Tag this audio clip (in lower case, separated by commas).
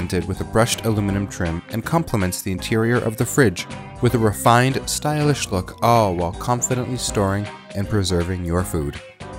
music, speech